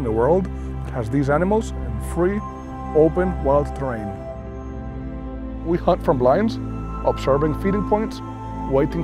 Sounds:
Speech, Music

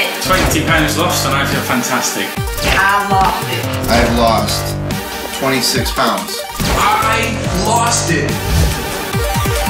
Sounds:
Speech, Music

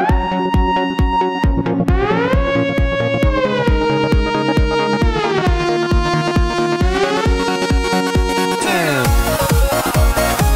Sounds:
Music

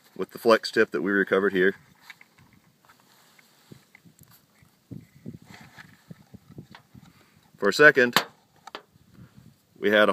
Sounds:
Speech

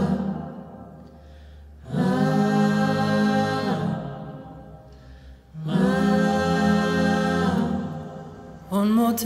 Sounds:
Music

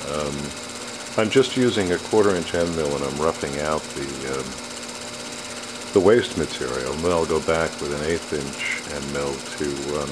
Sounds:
Tools, Speech

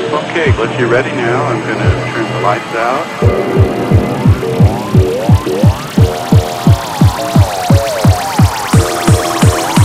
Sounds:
Music, Speech

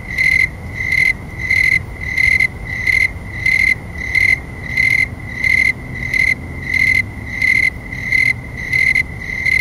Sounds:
cricket chirping

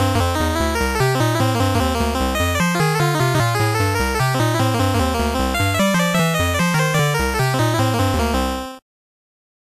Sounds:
Music, Soundtrack music

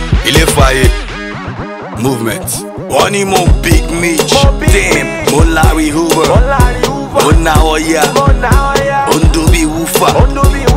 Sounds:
Music

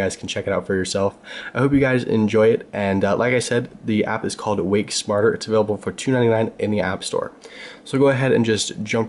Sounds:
Speech

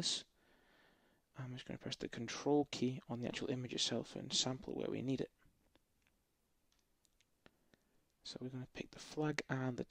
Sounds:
Speech

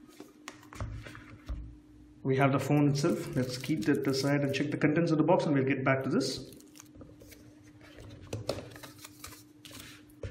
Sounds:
Speech, inside a small room

